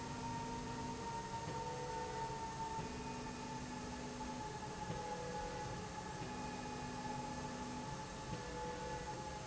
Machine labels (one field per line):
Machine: slide rail